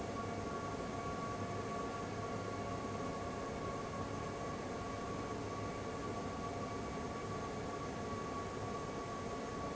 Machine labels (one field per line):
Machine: fan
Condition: abnormal